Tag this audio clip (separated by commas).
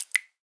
Drip, Liquid